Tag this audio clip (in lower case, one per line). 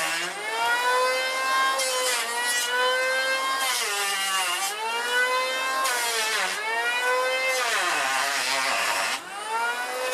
planing timber